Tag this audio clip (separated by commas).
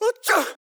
Sneeze, Respiratory sounds